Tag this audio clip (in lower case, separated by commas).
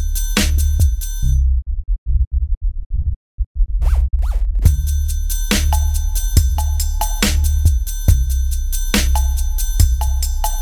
music, dubstep, electronic music